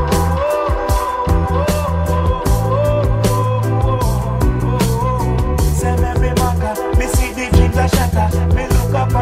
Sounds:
Reggae, Music

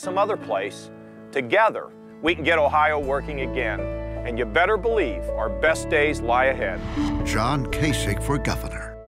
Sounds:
Speech, Music

